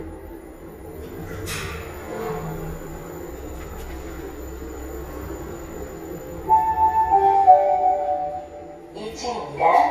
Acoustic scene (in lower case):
elevator